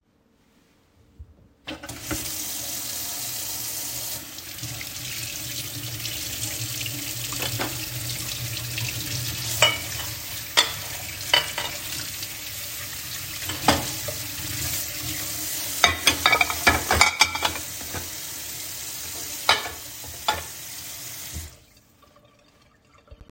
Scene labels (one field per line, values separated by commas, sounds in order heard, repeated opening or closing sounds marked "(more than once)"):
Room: kitchen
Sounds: running water, cutlery and dishes